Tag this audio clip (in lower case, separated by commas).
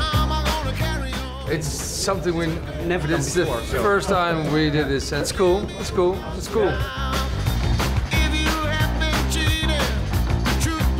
speech, sound effect, music